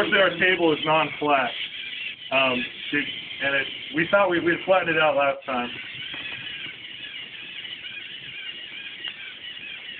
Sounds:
speech

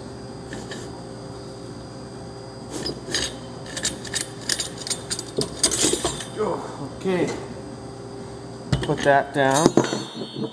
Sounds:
speech

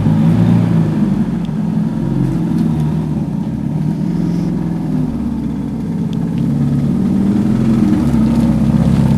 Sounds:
vehicle
motor vehicle (road)
car

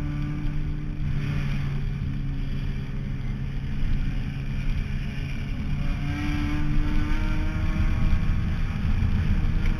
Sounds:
vehicle
motor vehicle (road)
car

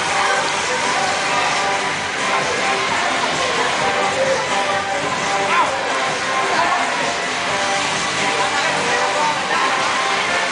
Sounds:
music

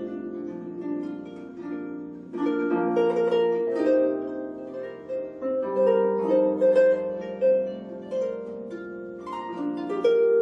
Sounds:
playing harp

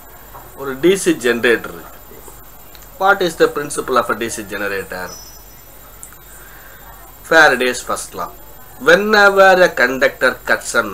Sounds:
speech
inside a small room

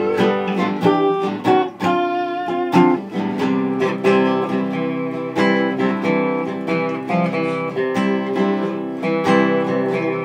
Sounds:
playing steel guitar

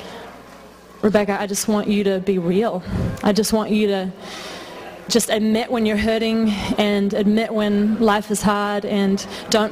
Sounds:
speech

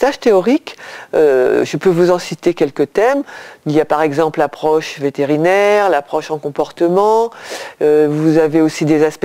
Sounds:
speech

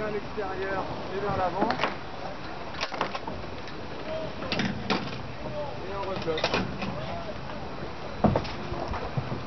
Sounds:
wind
boat

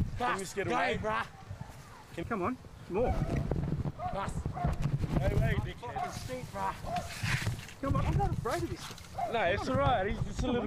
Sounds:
speech

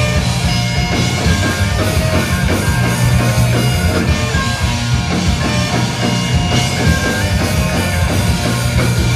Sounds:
bagpipes
wind instrument

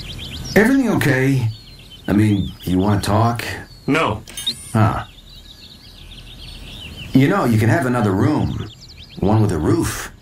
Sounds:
bird song
speech
bird
environmental noise

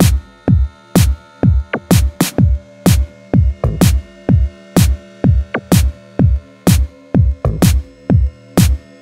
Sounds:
soundtrack music
music

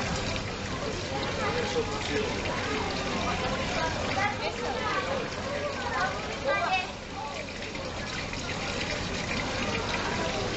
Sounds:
otter growling

